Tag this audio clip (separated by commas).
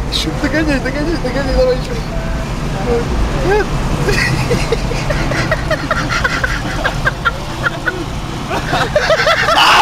Car, Speech, Vehicle